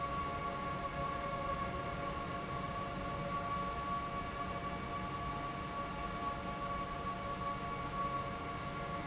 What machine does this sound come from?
fan